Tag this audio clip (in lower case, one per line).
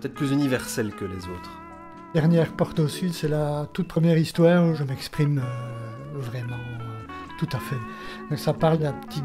speech
music